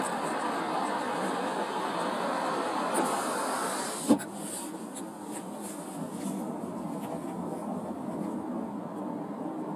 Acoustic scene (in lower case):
car